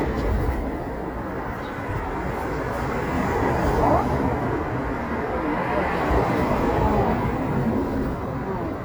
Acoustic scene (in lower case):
residential area